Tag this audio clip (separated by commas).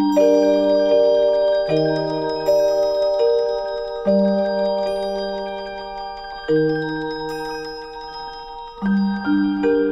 Mallet percussion, Glockenspiel, Marimba